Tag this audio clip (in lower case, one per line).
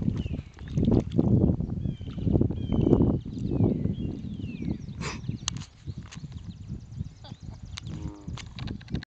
animal